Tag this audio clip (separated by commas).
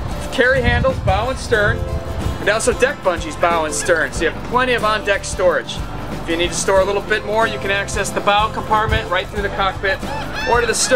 Speech, Music